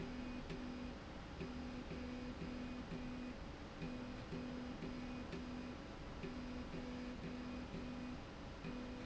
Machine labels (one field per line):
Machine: slide rail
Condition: normal